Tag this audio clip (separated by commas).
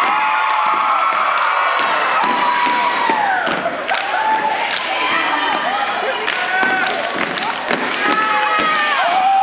thud, Speech